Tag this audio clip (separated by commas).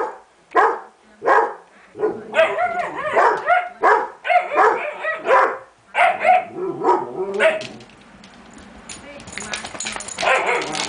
Speech, Bark